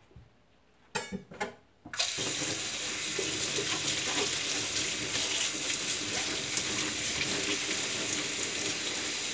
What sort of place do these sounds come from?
kitchen